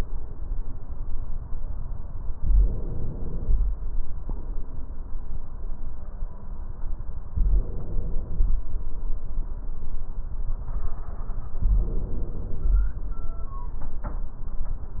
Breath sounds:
2.36-3.62 s: inhalation
7.33-8.60 s: inhalation
11.60-12.86 s: inhalation

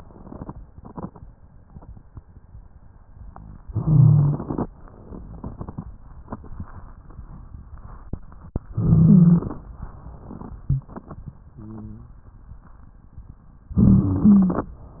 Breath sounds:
3.69-4.66 s: inhalation
8.69-9.54 s: stridor
8.69-9.66 s: inhalation
13.73-14.58 s: stridor
13.73-14.70 s: inhalation

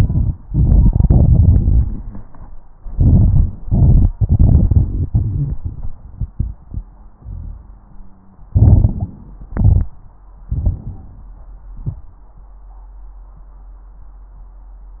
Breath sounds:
0.00-0.32 s: inhalation
0.44-2.49 s: exhalation
0.44-2.49 s: crackles
2.88-3.57 s: inhalation
3.64-8.47 s: exhalation
6.68-8.47 s: wheeze
8.51-9.21 s: inhalation
8.51-9.21 s: crackles
9.49-9.92 s: exhalation
9.49-9.92 s: crackles
10.52-11.34 s: inhalation
11.76-12.16 s: exhalation

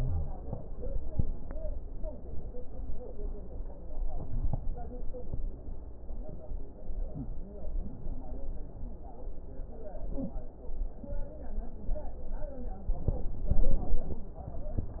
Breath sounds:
4.07-4.81 s: inhalation
13.44-14.24 s: inhalation
13.44-14.24 s: crackles

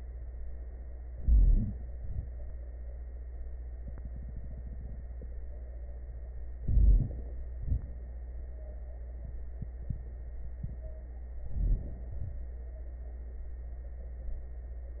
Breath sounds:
1.10-1.81 s: inhalation
1.85-2.34 s: exhalation
6.60-7.48 s: inhalation
7.57-8.07 s: exhalation
11.39-12.11 s: inhalation
12.11-12.66 s: exhalation

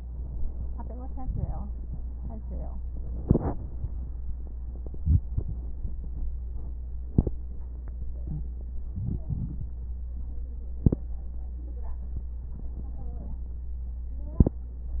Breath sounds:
4.50-5.73 s: inhalation
4.50-5.73 s: crackles
8.18-8.48 s: wheeze
8.75-9.99 s: inhalation
8.75-9.99 s: crackles
12.38-13.74 s: inhalation
12.38-13.74 s: crackles

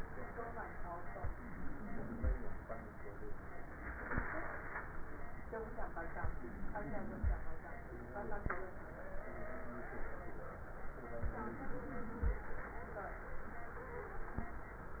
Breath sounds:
1.14-2.34 s: inhalation
1.14-2.34 s: crackles
6.17-7.37 s: inhalation
6.17-7.37 s: crackles
11.20-12.40 s: inhalation
11.20-12.40 s: crackles

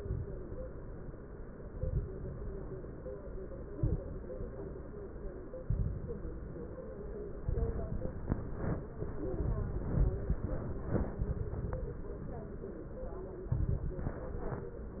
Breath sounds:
0.00-0.43 s: exhalation
0.00-0.43 s: crackles
1.73-2.16 s: exhalation
1.73-2.16 s: crackles
3.74-4.18 s: exhalation
3.74-4.18 s: crackles
5.64-6.23 s: exhalation
5.64-6.23 s: crackles
7.45-8.04 s: exhalation
7.45-8.04 s: crackles
13.55-14.14 s: exhalation
13.55-14.14 s: crackles

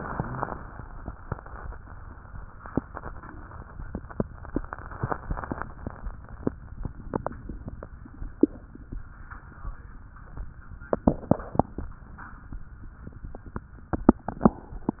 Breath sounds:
0.00-0.54 s: exhalation
0.00-0.54 s: wheeze
6.90-7.86 s: inhalation

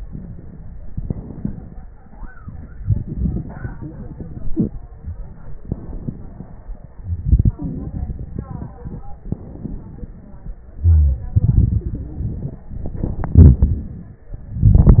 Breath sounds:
0.78-1.85 s: inhalation
0.78-1.85 s: crackles
2.77-4.49 s: exhalation
2.77-4.49 s: crackles
5.60-6.64 s: inhalation
7.21-9.07 s: exhalation
9.21-10.60 s: inhalation
9.21-10.60 s: crackles
10.80-11.23 s: wheeze
10.80-12.63 s: exhalation
12.77-14.31 s: inhalation
12.77-14.31 s: crackles

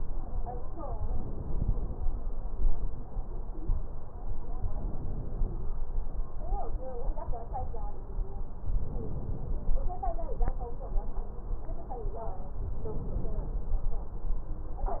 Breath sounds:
0.93-2.01 s: inhalation
3.48-3.77 s: stridor
4.74-5.81 s: inhalation
8.73-9.80 s: inhalation
12.73-13.80 s: inhalation

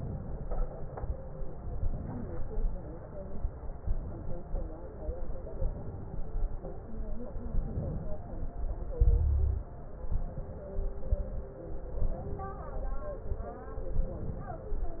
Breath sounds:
0.00-0.49 s: inhalation
1.67-2.24 s: inhalation
3.80-4.37 s: inhalation
5.60-6.17 s: inhalation
7.45-8.15 s: inhalation
8.99-9.69 s: exhalation
10.13-10.83 s: inhalation
12.03-12.77 s: inhalation
13.97-14.71 s: inhalation

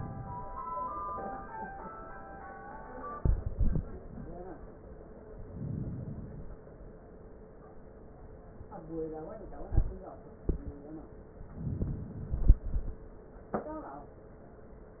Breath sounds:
5.22-6.72 s: inhalation
11.50-12.66 s: inhalation

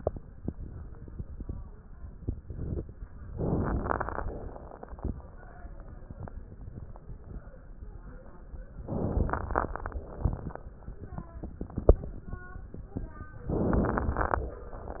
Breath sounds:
3.32-4.24 s: inhalation
3.32-4.24 s: crackles
4.22-5.14 s: exhalation
4.24-5.17 s: crackles
8.81-9.73 s: inhalation
8.81-9.73 s: crackles
9.73-10.65 s: exhalation
9.73-10.65 s: crackles
13.49-14.41 s: inhalation
13.49-14.41 s: crackles
14.46-15.00 s: exhalation
14.46-15.00 s: crackles

